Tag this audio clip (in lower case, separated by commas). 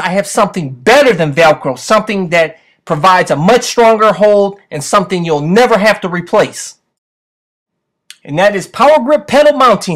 speech